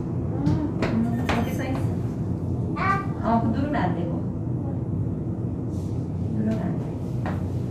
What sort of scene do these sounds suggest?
elevator